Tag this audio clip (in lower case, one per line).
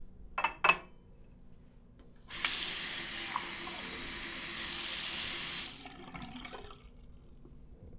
water